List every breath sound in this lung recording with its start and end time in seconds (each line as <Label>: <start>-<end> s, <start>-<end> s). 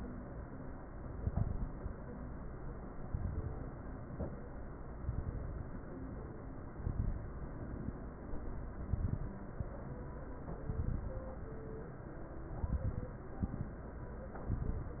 Inhalation: 1.16-1.82 s, 3.06-3.72 s, 5.03-5.81 s, 6.69-7.29 s, 8.74-9.35 s, 10.66-11.27 s, 12.56-13.17 s, 14.46-15.00 s
Crackles: 1.16-1.82 s, 3.06-3.72 s, 5.03-5.81 s, 6.69-7.29 s, 8.74-9.35 s, 10.66-11.27 s, 12.56-13.17 s, 14.46-15.00 s